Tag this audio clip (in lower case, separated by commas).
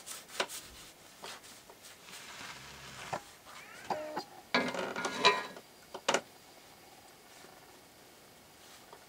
inside a small room